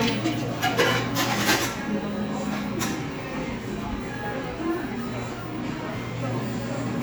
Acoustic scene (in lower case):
cafe